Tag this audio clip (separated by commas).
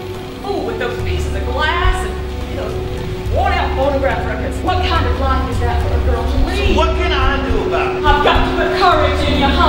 Speech, Music